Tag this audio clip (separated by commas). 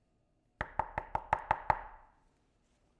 Domestic sounds, Door, Knock